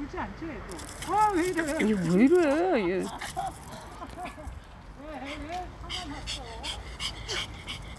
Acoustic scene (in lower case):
residential area